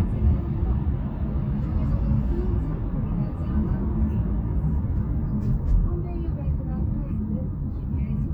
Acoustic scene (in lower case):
car